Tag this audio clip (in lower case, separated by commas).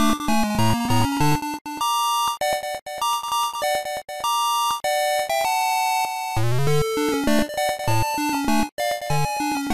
video game music, music